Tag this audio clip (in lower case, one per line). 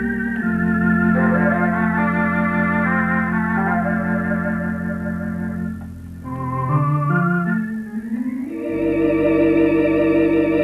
organ
piano
musical instrument
music
keyboard (musical)